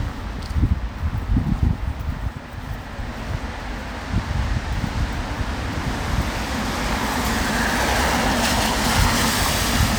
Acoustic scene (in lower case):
street